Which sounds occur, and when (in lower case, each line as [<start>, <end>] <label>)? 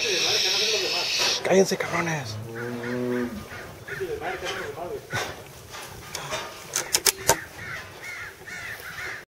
[0.00, 1.42] hiss
[0.00, 9.25] background noise
[0.01, 1.10] male speech
[1.48, 2.26] male speech
[2.49, 3.46] male speech
[2.50, 4.21] rustle
[2.61, 2.70] crow
[2.85, 2.98] crow
[3.13, 3.32] crow
[3.54, 3.67] crow
[3.90, 4.11] crow
[3.96, 5.06] male speech
[4.28, 4.41] crow
[4.45, 4.71] generic impact sounds
[4.50, 4.76] crow
[5.13, 5.32] crow
[5.18, 5.44] generic impact sounds
[5.65, 5.99] generic impact sounds
[6.16, 6.52] generic impact sounds
[6.73, 7.49] generic impact sounds
[6.80, 6.98] crow
[7.23, 7.50] crow
[7.41, 9.25] rustle
[7.63, 7.85] crow
[8.07, 8.35] crow
[8.49, 8.80] crow
[8.93, 9.25] crow